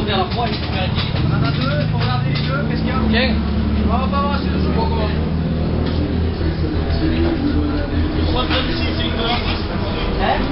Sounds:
Vehicle, Speech

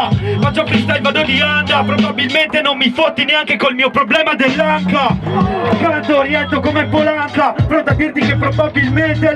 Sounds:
Music, Speech

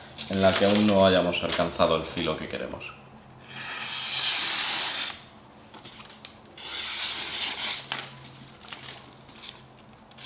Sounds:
sharpen knife

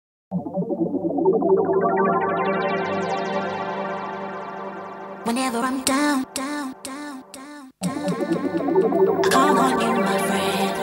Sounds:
Music

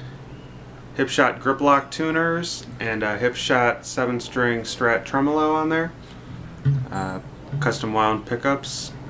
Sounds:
Speech

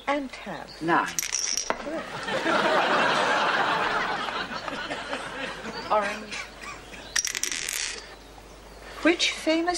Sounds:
outside, rural or natural, Speech

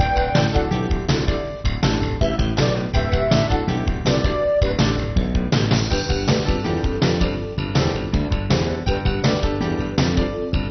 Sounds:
Music

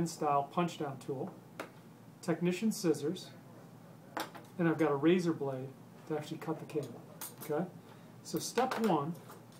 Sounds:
Speech

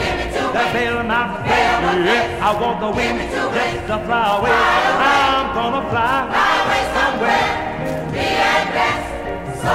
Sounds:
Choir, Music

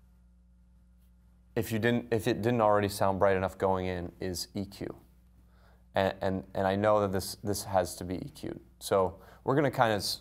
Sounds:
Speech

